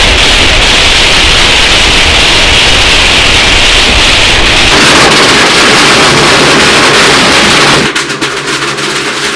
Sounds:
lighting firecrackers

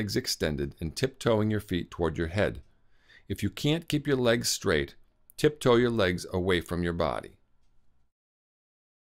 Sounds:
Speech

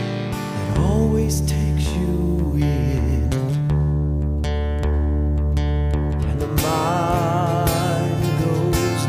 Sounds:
Music

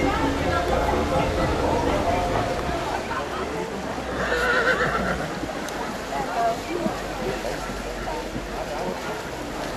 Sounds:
Animal, Speech, Clip-clop, whinny, Horse, horse neighing

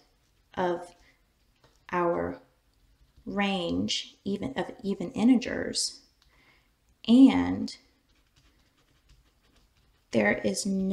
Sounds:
Speech, inside a small room

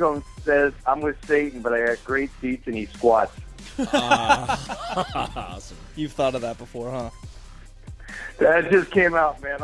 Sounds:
Speech, Music

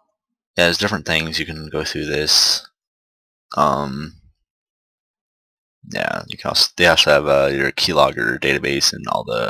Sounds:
Speech

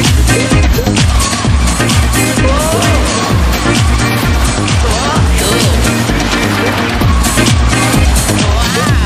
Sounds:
Music

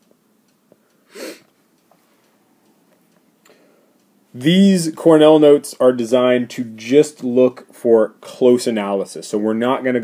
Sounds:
Speech

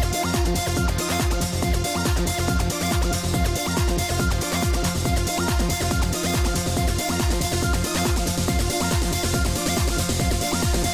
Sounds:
Music

